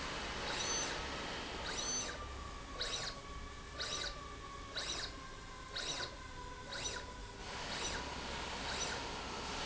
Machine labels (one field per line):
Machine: slide rail